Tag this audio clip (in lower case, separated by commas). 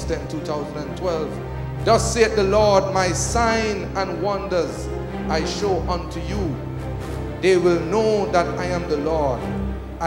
speech, music